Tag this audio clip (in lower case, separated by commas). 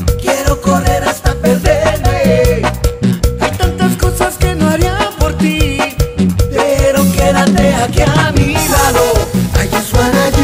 music